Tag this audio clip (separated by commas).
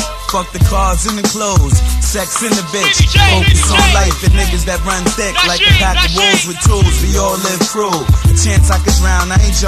Music, Hip hop music, Rapping